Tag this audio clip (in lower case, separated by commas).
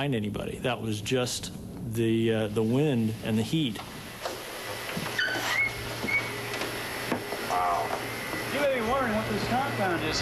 speech